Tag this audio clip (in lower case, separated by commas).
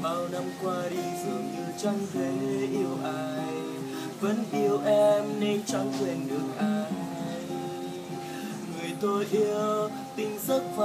plucked string instrument, acoustic guitar, music, guitar, musical instrument